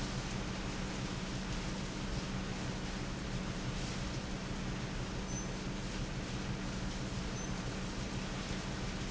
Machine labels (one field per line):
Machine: pump